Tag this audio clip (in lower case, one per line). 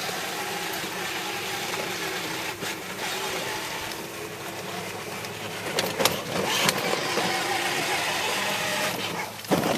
motor vehicle (road)
vehicle
car